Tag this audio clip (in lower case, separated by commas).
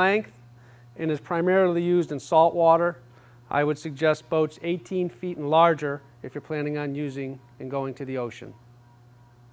speech